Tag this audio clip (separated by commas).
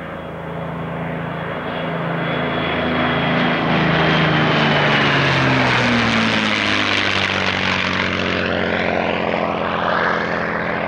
airplane flyby